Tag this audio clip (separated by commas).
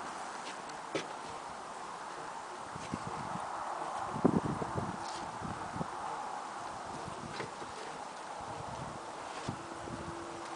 horse clip-clop, Horse, Clip-clop, Speech, Animal